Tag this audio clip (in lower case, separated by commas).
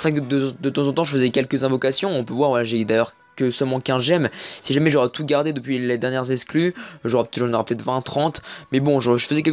speech